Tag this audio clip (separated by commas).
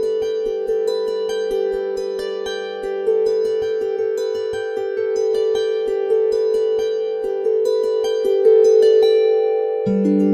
Pizzicato, Zither